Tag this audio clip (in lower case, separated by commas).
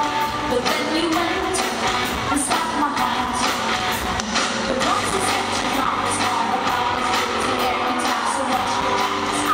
music